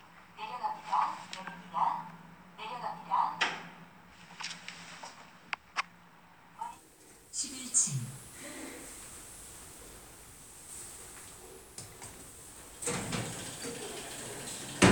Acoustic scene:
elevator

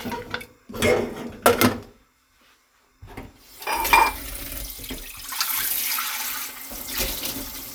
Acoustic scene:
kitchen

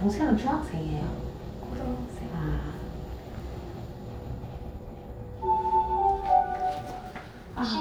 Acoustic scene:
elevator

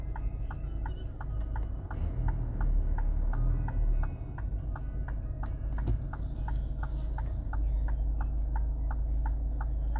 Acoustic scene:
car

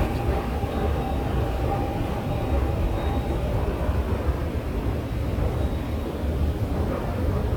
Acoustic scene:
subway station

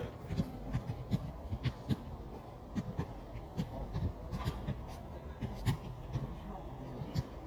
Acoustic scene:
park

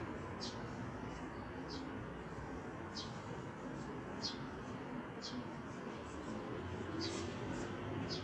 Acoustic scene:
residential area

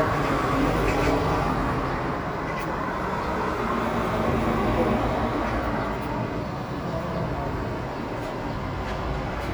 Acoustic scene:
residential area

